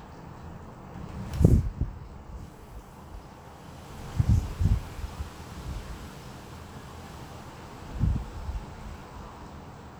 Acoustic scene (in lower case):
residential area